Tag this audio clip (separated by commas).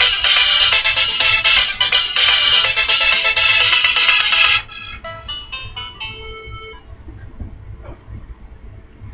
Pant, Music